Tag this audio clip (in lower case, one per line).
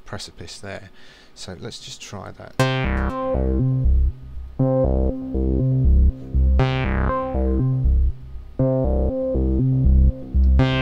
synthesizer
music
musical instrument
speech